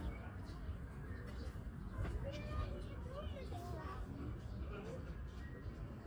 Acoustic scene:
park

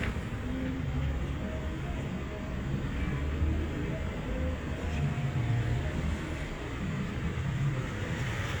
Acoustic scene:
street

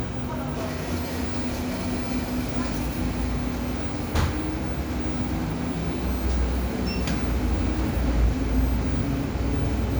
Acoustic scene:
cafe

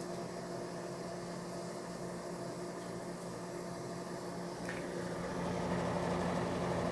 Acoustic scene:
kitchen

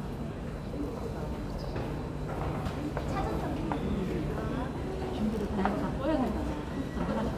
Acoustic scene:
subway station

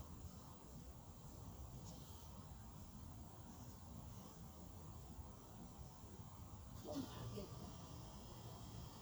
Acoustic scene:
park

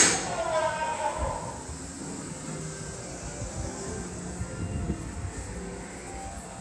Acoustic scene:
subway station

